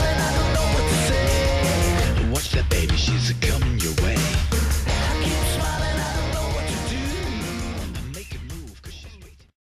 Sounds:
music

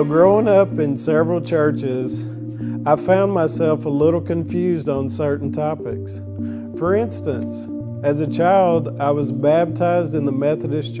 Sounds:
speech
music

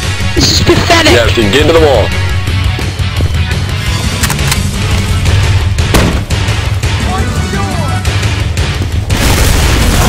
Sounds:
speech
music
background music

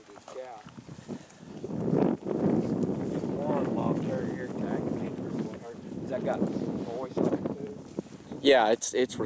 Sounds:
speech

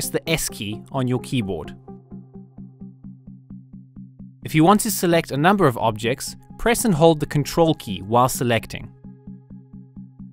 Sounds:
speech

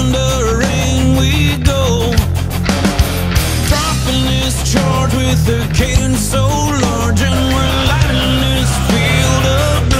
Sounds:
music

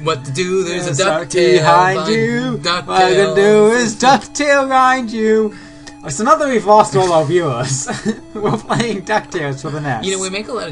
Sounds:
speech

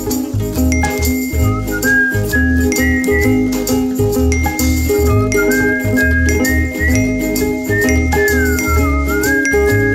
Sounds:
music

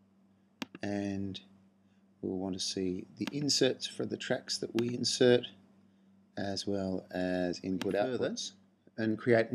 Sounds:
speech

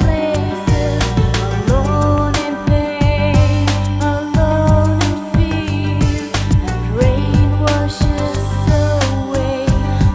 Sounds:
music

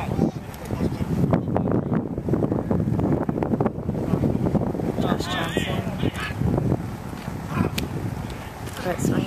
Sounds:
wind

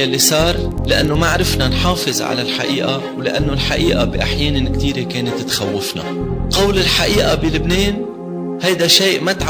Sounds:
music
speech
man speaking
monologue

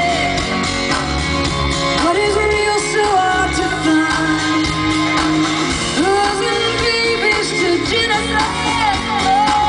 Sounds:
music

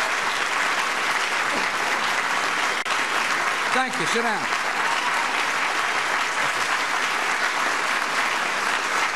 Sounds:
male speech
speech

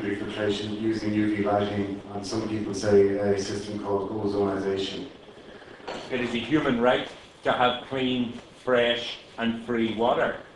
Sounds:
speech

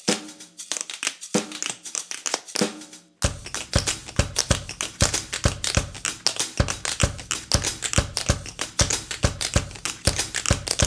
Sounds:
tap dancing

